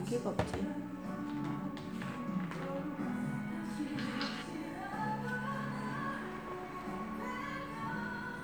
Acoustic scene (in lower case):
cafe